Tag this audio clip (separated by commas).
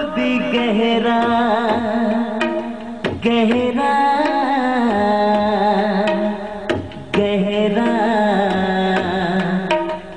Music